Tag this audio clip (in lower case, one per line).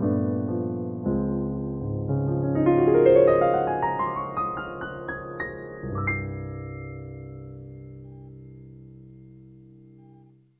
music